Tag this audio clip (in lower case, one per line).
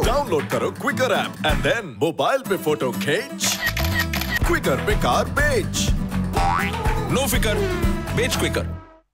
music
speech